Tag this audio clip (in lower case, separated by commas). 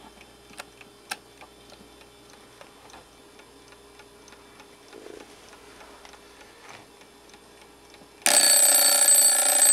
tick-tock, tick